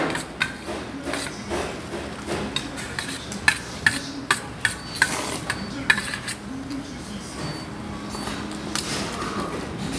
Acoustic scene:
restaurant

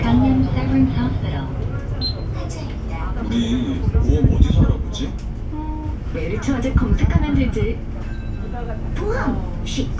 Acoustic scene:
bus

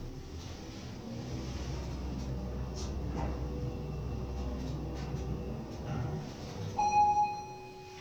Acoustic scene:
elevator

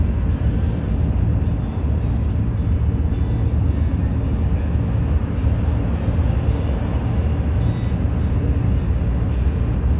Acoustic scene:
bus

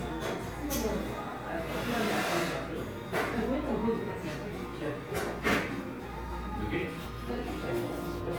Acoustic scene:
cafe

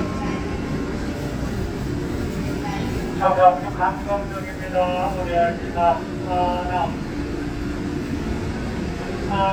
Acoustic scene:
subway train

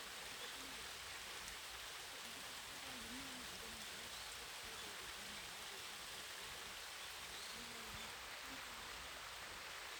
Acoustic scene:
park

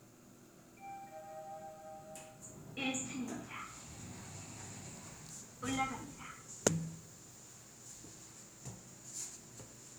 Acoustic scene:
elevator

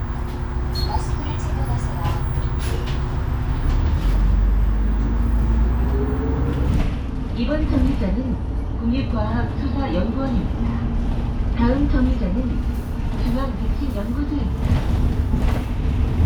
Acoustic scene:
bus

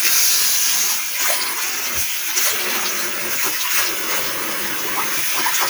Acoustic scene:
restroom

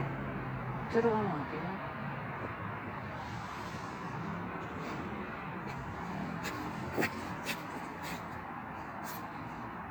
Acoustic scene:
street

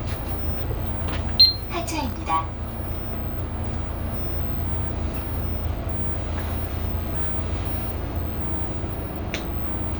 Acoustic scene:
bus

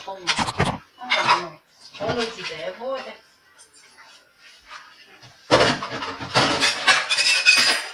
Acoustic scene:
kitchen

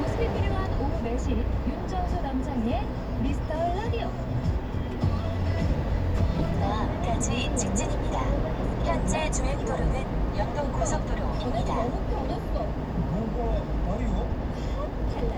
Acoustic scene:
car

